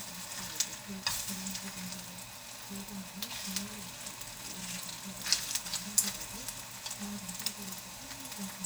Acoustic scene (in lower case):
kitchen